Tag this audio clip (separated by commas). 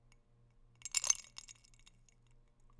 Chink, Glass